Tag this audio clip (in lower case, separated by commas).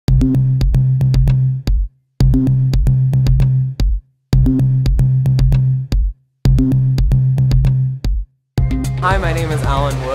drum machine, music, speech